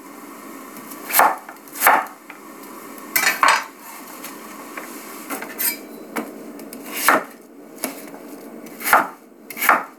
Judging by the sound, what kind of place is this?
kitchen